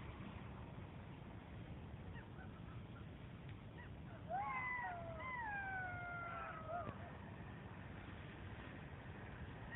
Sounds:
coyote howling

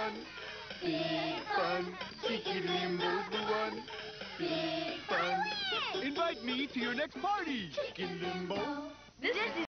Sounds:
Speech, Music

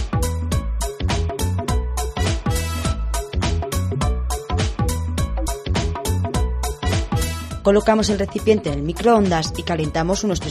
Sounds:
Speech, Music

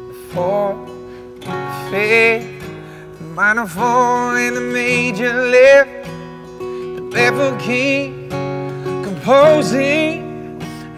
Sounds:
Music

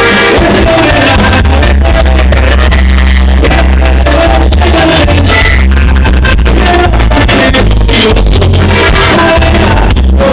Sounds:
Music

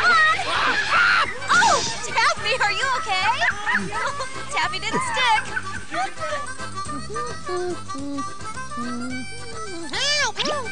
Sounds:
Animal

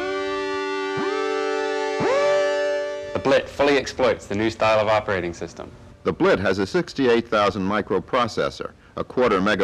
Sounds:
Music, Speech

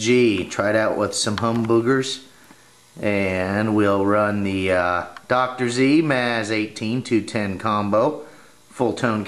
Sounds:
Speech

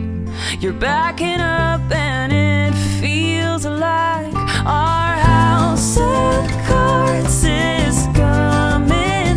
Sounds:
Music

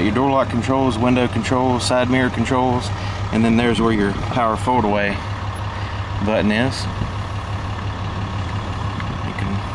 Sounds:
Speech, Car, Vehicle, outside, urban or man-made

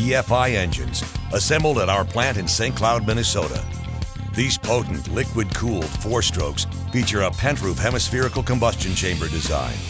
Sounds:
Speech, Music

